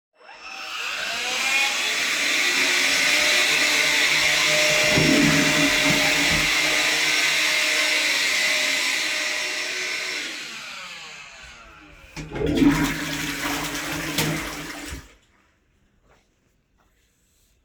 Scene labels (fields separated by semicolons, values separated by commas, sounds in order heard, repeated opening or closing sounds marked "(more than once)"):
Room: lavatory, hallway; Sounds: vacuum cleaner, toilet flushing